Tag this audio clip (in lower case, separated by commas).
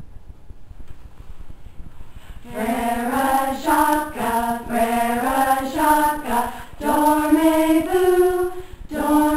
music